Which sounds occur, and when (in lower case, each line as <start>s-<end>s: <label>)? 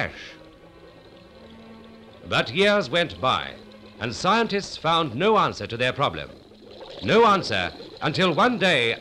0.0s-0.1s: male speech
0.0s-0.4s: breathing
0.0s-9.0s: boiling
0.0s-9.0s: music
2.3s-3.6s: male speech
4.0s-6.3s: male speech
7.0s-7.7s: male speech
8.0s-9.0s: male speech